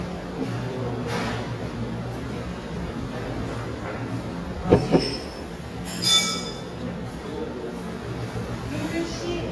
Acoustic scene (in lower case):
restaurant